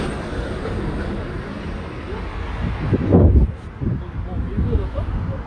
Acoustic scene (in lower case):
street